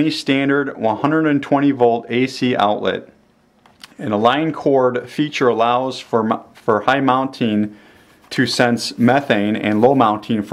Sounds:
speech

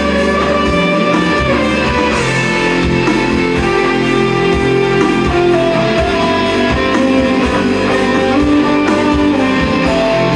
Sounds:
music
plucked string instrument
acoustic guitar
electric guitar
musical instrument

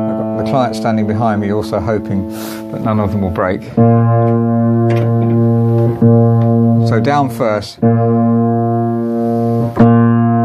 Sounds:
musical instrument
piano
speech
music
inside a small room

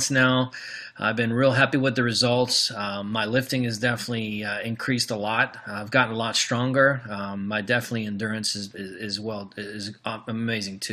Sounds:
speech

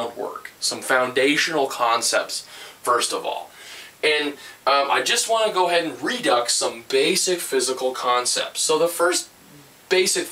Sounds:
speech

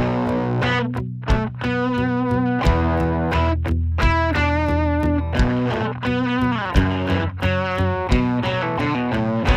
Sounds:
music

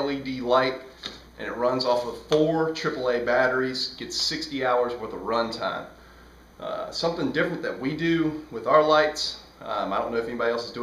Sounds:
speech

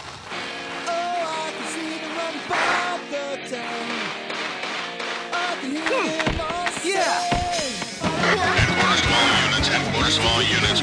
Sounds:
thwack

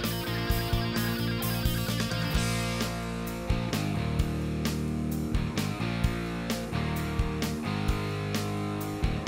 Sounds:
music

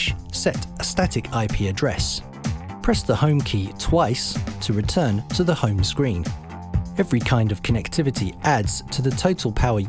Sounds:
music
speech

